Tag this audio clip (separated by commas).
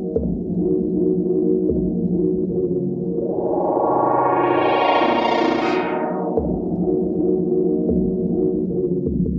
Musical instrument, Music